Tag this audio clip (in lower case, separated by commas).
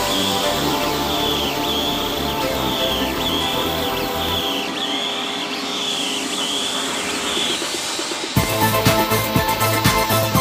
drill